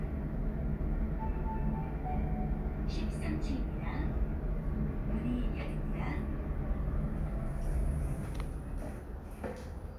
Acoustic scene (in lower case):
elevator